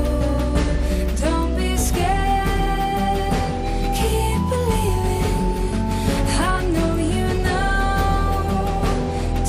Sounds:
Music

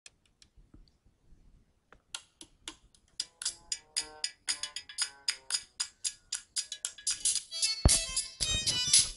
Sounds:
Music

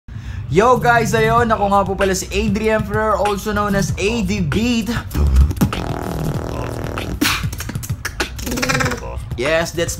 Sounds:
beat boxing

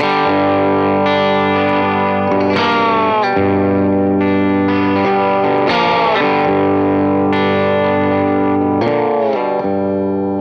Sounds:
playing steel guitar

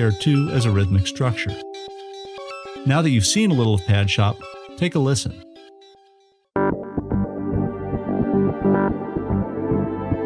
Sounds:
Music, Synthesizer, Speech

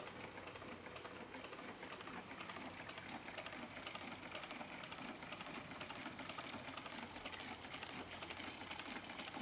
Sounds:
Engine

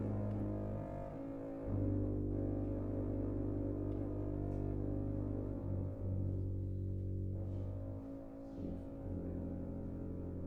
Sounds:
Double bass, Bowed string instrument

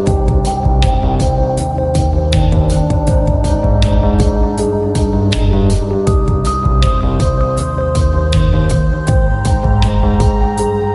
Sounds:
Music

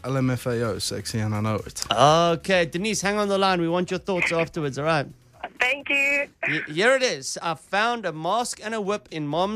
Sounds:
Speech

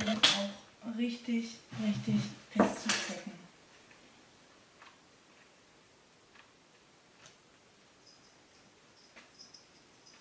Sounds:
Speech

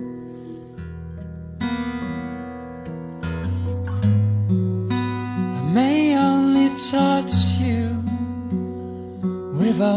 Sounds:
Music

